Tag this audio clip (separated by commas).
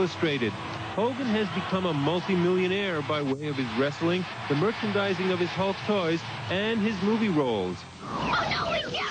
Speech